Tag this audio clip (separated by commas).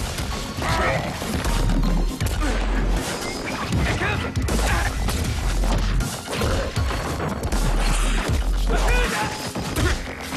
Music